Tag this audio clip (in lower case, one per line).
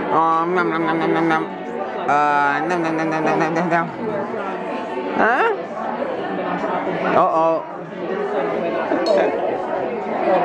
speech